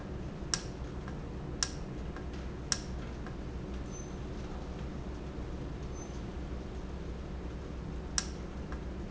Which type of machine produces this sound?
valve